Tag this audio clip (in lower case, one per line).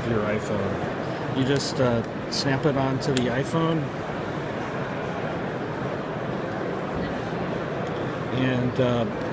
speech